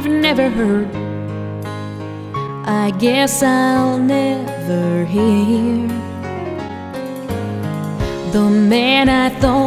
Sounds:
Country, Lullaby, Music

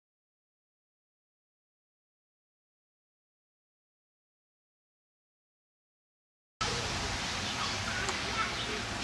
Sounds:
Speech, Train, Railroad car, Vehicle, Rail transport

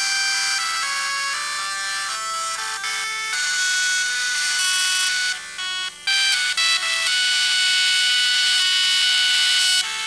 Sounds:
Music, Printer

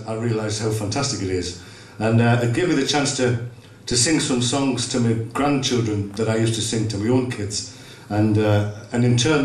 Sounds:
Speech

